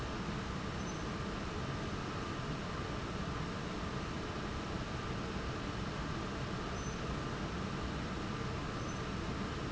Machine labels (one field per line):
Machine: fan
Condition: abnormal